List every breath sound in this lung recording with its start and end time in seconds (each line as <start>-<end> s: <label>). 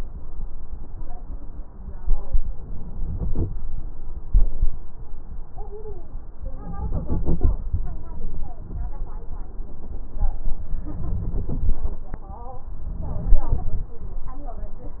2.67-3.50 s: inhalation
6.65-7.61 s: inhalation
10.83-11.82 s: inhalation
12.99-13.89 s: inhalation